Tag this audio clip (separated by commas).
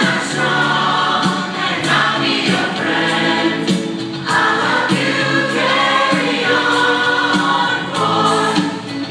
Male singing, Female singing, Choir, Music